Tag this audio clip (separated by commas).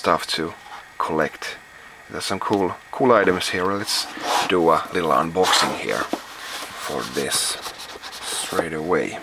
Speech